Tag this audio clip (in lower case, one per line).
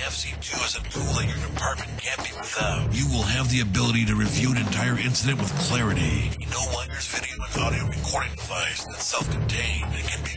music
speech